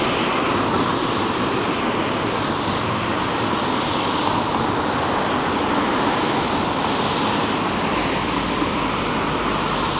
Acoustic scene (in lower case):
street